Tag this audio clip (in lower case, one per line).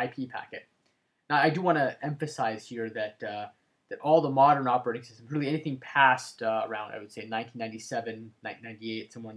speech